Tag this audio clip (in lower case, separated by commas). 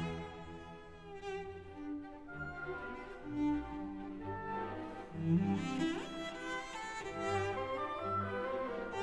double bass, bowed string instrument, musical instrument, violin, cello, music, orchestra